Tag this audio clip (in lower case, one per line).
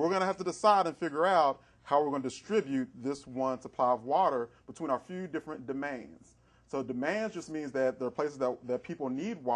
speech